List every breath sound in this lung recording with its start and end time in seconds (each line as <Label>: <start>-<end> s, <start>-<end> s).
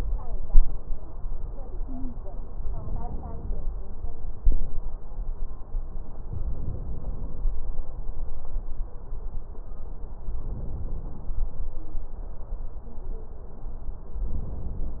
Inhalation: 2.68-3.65 s, 6.39-7.62 s, 10.26-11.49 s, 14.23-15.00 s
Stridor: 1.78-2.22 s